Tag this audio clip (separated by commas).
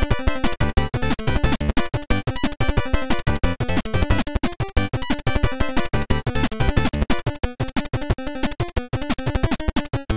Video game music, Music